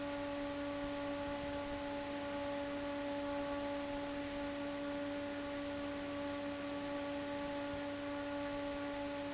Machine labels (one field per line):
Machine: fan